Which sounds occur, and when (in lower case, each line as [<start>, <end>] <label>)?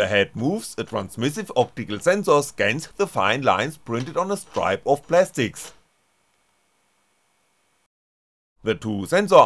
[0.00, 1.62] male speech
[0.00, 7.82] printer
[1.74, 2.46] male speech
[2.57, 2.86] male speech
[2.96, 3.69] male speech
[3.84, 4.97] male speech
[5.10, 5.81] male speech
[8.54, 9.45] male speech